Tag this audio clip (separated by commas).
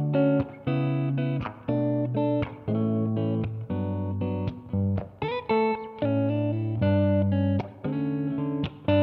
Guitar, Music, Plucked string instrument, Strum, Musical instrument